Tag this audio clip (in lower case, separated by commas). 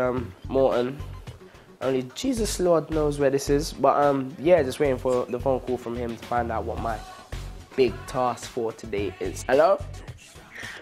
speech, music